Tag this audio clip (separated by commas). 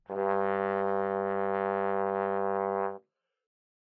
Musical instrument, Music, Brass instrument